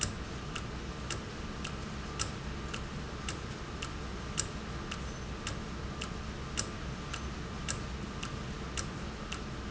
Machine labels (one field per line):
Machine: valve